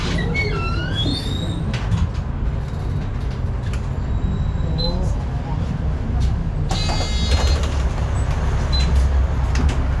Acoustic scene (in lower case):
bus